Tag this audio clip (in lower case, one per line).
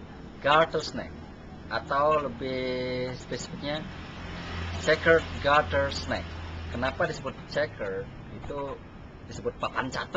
speech
outside, urban or man-made